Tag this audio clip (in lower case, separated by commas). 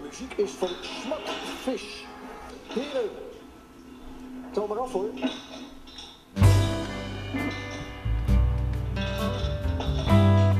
television, music, narration, speech